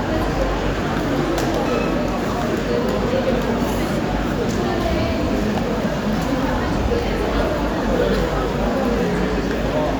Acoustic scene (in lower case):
crowded indoor space